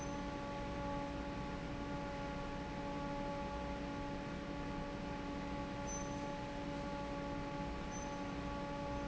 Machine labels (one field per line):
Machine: fan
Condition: normal